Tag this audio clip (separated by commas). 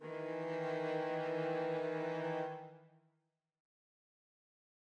Music, Bowed string instrument, Musical instrument